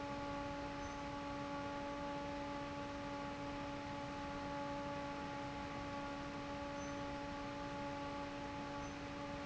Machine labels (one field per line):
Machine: fan